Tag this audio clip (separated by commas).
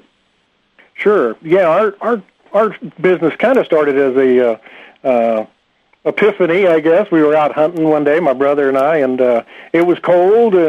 Speech